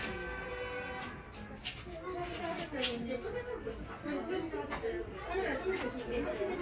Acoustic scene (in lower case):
crowded indoor space